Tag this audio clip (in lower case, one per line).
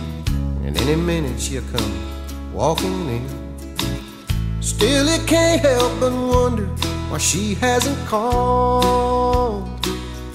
music